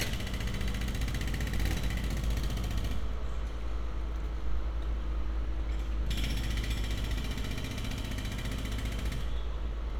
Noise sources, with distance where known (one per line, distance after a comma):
jackhammer